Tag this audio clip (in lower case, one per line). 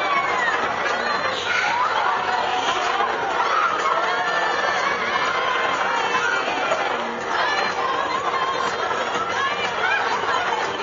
chatter